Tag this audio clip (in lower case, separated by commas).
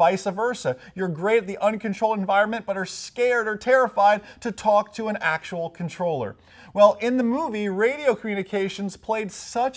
speech